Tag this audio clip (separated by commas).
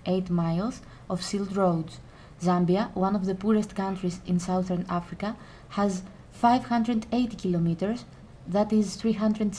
Speech